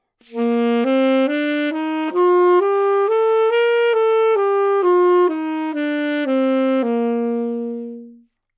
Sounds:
Music, Musical instrument, Wind instrument

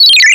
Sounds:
Alarm, Ringtone, Telephone

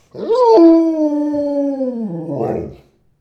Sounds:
Animal, Dog, pets

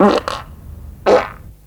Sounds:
Fart

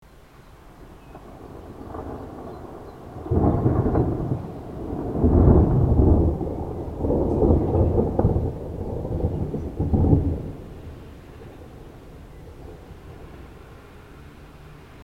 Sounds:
Thunderstorm, Thunder

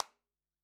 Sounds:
Hands, Clapping

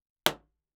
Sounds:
Explosion

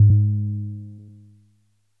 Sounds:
Keyboard (musical), Piano, Musical instrument, Music

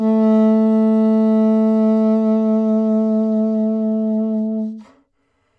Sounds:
Wind instrument, Music, Musical instrument

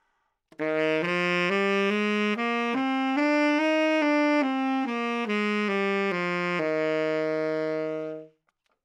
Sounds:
woodwind instrument, Musical instrument, Music

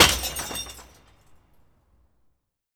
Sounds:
Shatter, Crushing, Glass

